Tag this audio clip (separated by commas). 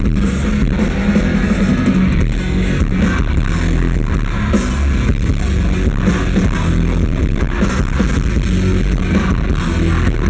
Music